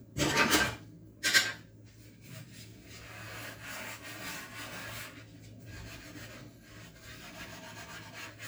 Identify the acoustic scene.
kitchen